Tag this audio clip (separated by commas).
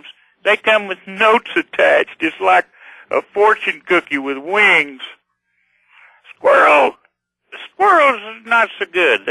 Speech